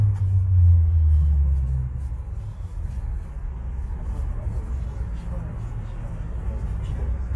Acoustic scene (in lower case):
bus